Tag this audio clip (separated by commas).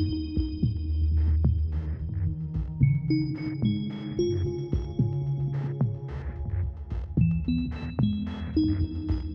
Music